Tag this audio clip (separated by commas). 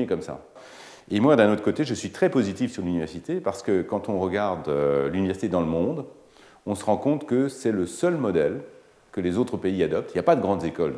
Speech